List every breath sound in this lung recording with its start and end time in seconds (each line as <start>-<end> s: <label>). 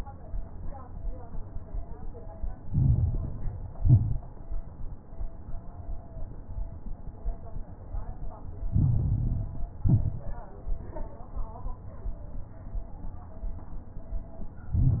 2.64-3.72 s: inhalation
2.64-3.72 s: crackles
3.74-4.30 s: exhalation
3.74-4.30 s: crackles
8.74-9.82 s: inhalation
8.74-9.82 s: crackles
9.82-10.38 s: exhalation
9.82-10.38 s: crackles
14.73-15.00 s: inhalation
14.73-15.00 s: crackles